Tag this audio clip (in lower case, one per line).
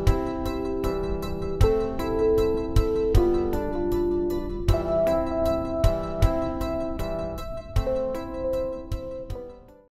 music